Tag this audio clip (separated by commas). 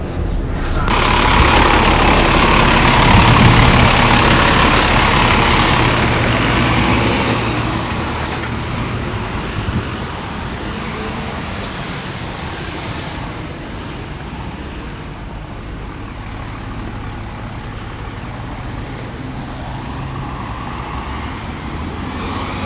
Vehicle, Bus, Motor vehicle (road)